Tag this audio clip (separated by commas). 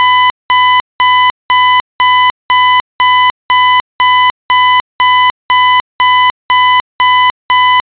Alarm